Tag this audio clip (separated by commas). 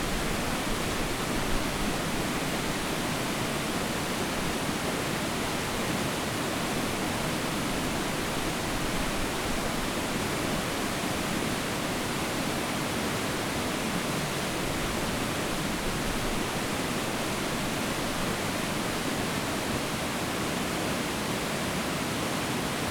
Water